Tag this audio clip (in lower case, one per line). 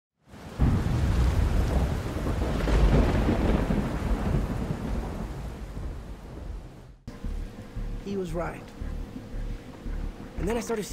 music
speech